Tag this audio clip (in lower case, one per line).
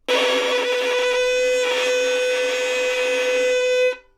bowed string instrument
musical instrument
music